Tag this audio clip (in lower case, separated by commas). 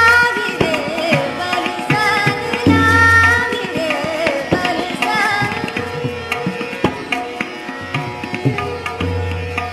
folk music, music